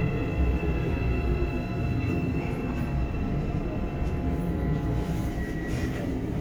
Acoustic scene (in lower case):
subway train